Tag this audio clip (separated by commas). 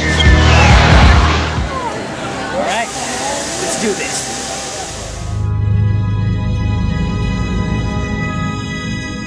Music, Speech, Scary music